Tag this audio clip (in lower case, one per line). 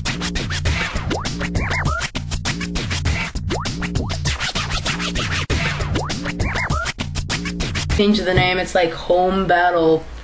speech
music
inside a small room